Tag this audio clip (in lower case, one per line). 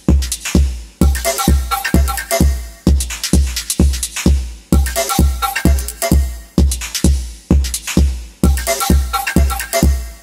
electronic music
music
techno